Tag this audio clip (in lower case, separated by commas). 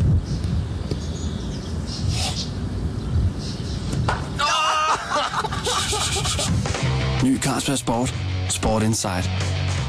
music, speech